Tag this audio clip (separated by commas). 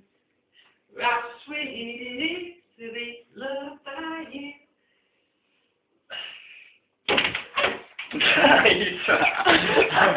Male singing